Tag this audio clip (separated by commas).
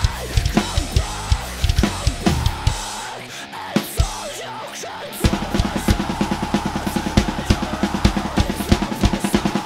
Snare drum, Drum, Musical instrument, Cymbal, Drum kit